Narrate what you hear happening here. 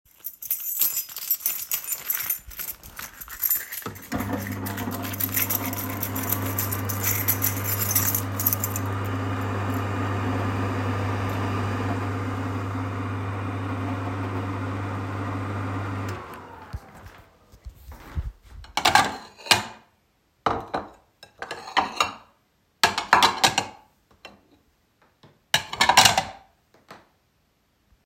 I was playing with my keys before i turned on the microwave for my food. When the microwave was done, I sorted my plates.